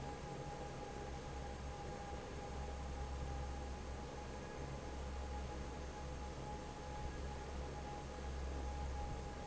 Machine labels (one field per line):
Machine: fan